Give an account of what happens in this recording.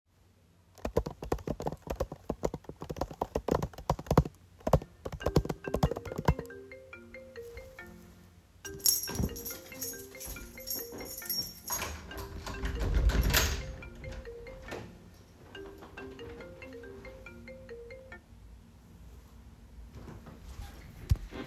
I washed dishes in the kitchen. The phone rang. I picked it up, and got reminded that I have to leave quick, but I forgot to turn off the water. I left the apartment in a rush, while the water was still rinning.